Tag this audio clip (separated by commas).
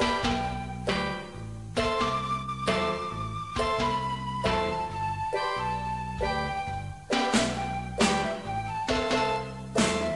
Steelpan